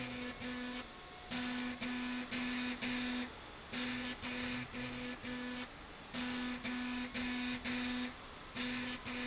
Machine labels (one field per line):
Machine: slide rail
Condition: abnormal